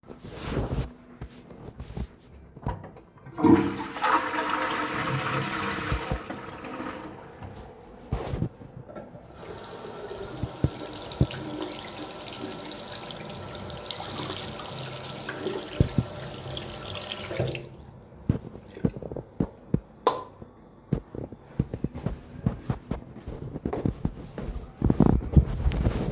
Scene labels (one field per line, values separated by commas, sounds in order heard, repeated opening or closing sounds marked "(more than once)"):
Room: bathroom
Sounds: toilet flushing, running water, light switch, footsteps